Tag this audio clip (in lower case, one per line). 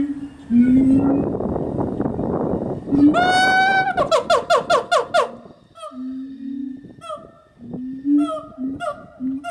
gibbon howling